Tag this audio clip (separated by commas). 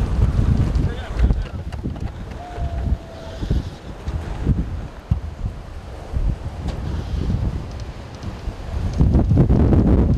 tornado roaring